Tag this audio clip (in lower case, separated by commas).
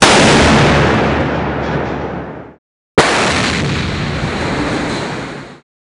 explosion